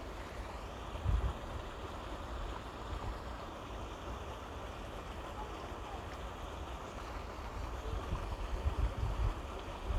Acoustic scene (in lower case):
park